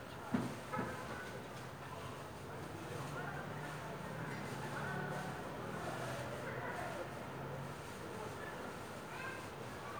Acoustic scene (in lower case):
residential area